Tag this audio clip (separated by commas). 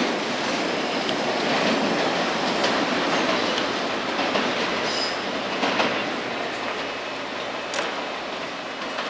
Rail transport, Train, Clickety-clack, train wagon